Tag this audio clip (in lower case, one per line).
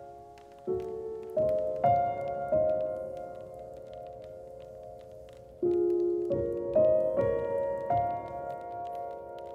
raindrop
raining